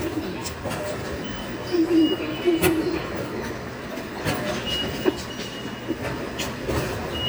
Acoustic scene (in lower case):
subway station